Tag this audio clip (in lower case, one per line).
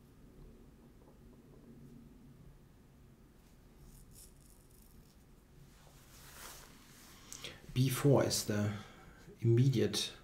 speech